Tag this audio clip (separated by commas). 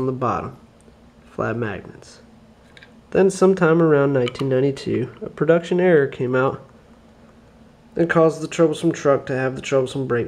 Speech